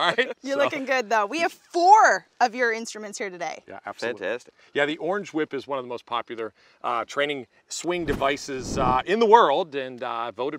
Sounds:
speech

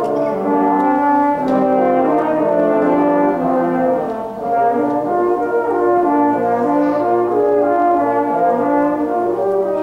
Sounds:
playing french horn

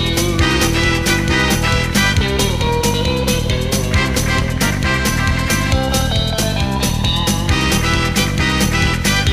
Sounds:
music
background music

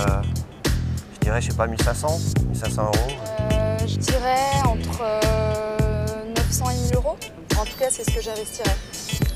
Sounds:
music
speech

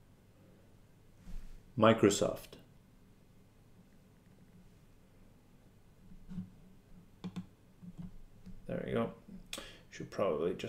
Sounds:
male speech
speech
monologue

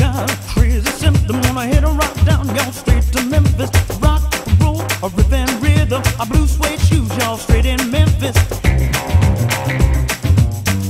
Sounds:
music

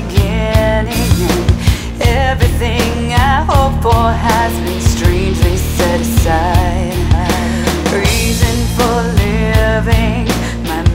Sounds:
music

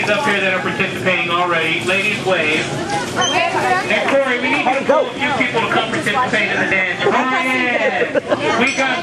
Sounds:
chatter
speech

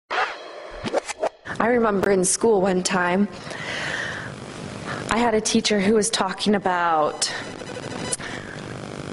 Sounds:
speech

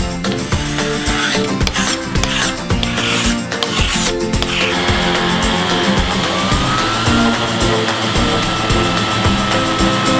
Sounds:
planing timber

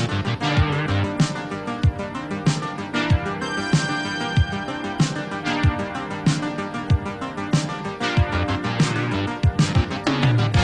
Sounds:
funk
music

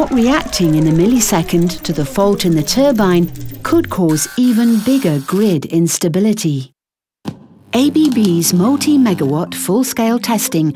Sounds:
speech

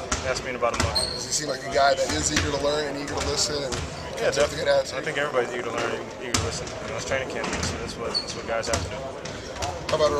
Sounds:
speech
basketball bounce

